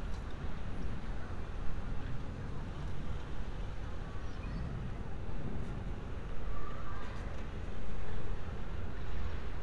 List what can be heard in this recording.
unidentified human voice